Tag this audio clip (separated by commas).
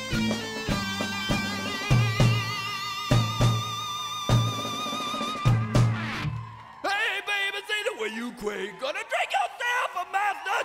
Music